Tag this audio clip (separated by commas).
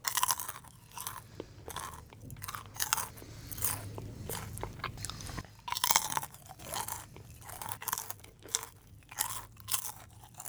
Chewing